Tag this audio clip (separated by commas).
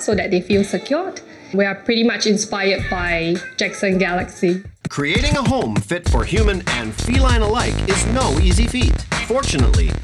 Speech, Music